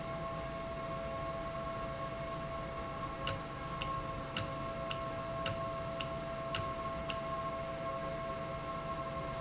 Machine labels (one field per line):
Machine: valve